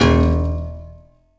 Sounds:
music
piano
keyboard (musical)
musical instrument

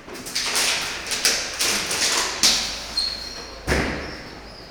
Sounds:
crushing

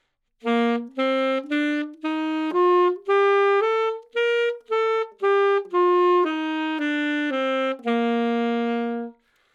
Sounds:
musical instrument
music
woodwind instrument

